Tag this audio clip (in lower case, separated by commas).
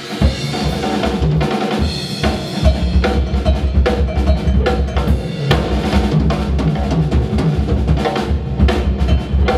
percussion, bass drum, drum roll, drum kit, rimshot, snare drum, drum